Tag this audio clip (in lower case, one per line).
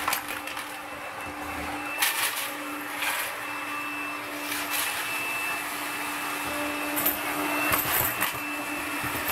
vacuum cleaner